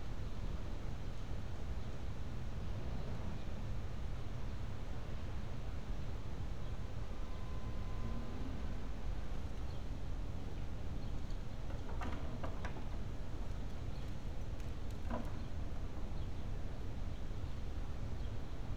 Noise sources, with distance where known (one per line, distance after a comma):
background noise